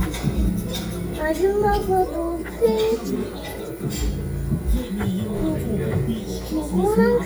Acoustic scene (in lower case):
restaurant